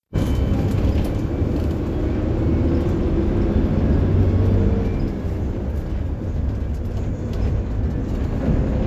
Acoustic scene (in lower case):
bus